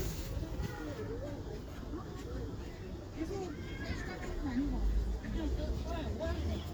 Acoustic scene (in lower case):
residential area